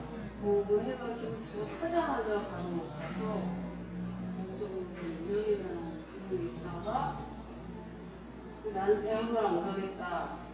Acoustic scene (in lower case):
cafe